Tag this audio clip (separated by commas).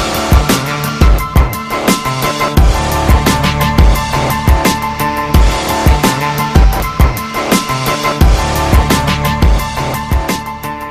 Music